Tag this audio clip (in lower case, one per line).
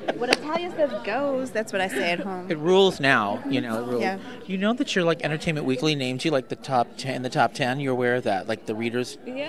female speech